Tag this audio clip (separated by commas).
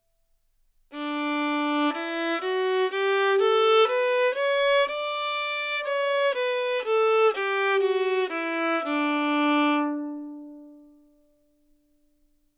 Music, Musical instrument, Bowed string instrument